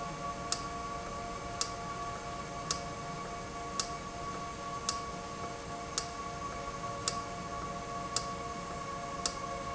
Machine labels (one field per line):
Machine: valve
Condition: normal